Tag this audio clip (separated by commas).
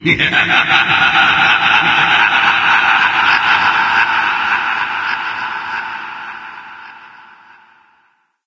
Laughter, Human voice